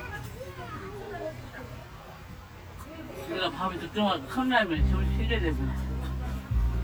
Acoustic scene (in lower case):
park